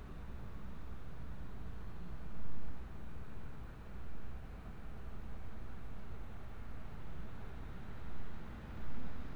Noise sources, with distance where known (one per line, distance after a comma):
background noise